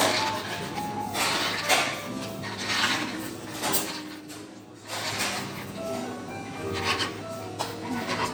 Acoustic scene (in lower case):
cafe